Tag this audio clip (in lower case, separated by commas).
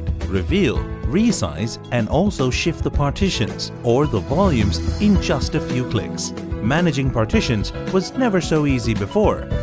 speech, music